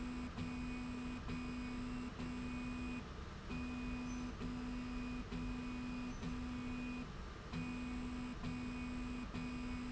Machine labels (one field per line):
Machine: slide rail